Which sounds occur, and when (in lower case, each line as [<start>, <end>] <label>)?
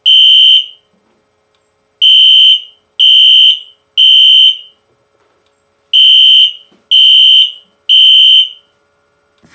[0.00, 9.54] mechanisms
[0.03, 0.87] fire alarm
[0.87, 1.10] generic impact sounds
[0.94, 1.25] surface contact
[1.46, 1.63] tick
[1.97, 2.80] fire alarm
[2.96, 3.80] fire alarm
[3.93, 4.74] fire alarm
[4.74, 5.01] generic impact sounds
[5.08, 5.47] surface contact
[5.37, 5.57] tick
[5.90, 6.71] fire alarm
[6.62, 6.86] generic impact sounds
[6.89, 7.64] fire alarm
[7.59, 7.76] generic impact sounds
[7.88, 8.67] fire alarm
[9.35, 9.54] generic impact sounds